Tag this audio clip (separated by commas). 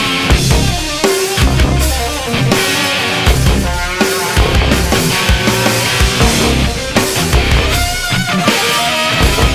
Music